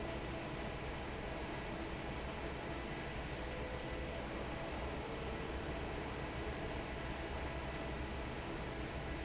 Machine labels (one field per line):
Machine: fan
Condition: normal